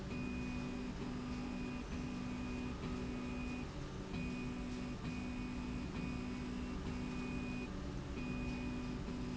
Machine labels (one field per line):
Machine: slide rail